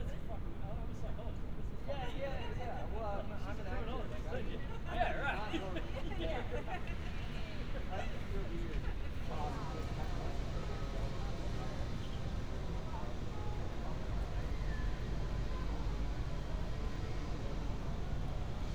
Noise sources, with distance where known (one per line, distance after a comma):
person or small group talking